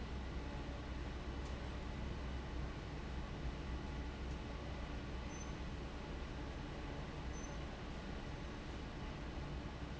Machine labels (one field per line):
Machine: fan